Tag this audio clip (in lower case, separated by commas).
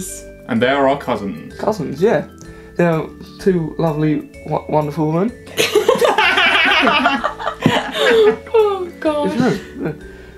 music, speech